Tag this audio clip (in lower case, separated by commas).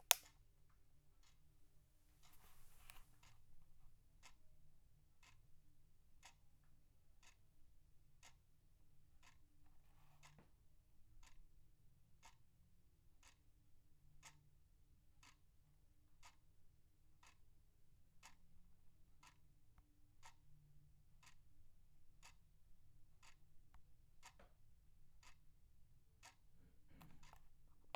clock, tick-tock, mechanisms